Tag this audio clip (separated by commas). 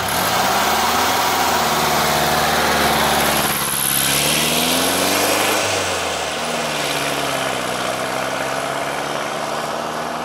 Car, Vehicle